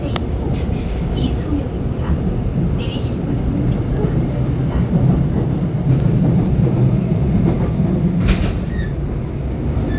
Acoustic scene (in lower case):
subway train